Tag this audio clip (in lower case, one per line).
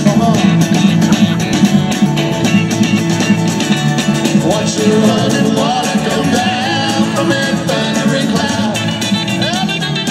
singing
music